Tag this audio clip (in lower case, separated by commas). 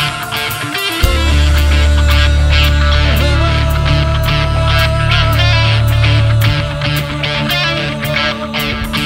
progressive rock, music